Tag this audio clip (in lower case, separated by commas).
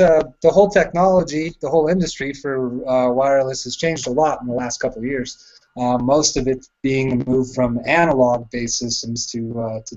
speech